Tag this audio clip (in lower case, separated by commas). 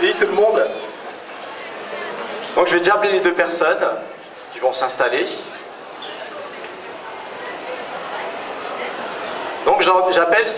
speech